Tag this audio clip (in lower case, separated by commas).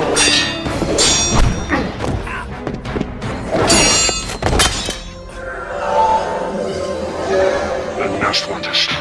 speech, thud, music